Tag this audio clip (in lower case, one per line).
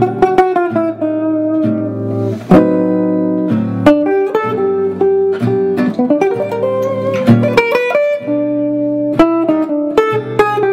guitar
music
musical instrument
plucked string instrument